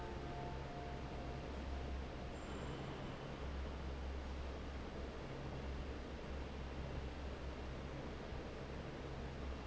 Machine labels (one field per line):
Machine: fan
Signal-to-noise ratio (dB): 6 dB